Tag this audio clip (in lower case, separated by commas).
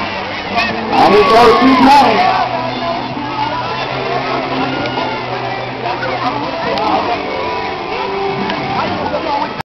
music, speech